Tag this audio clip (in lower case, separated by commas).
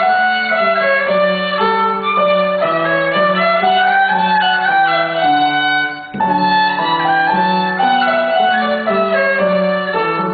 music, musical instrument, fiddle